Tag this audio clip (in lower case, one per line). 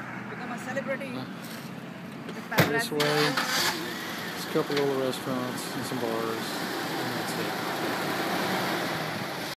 speech
truck
vehicle